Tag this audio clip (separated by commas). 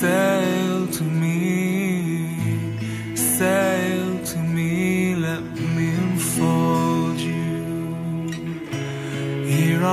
Music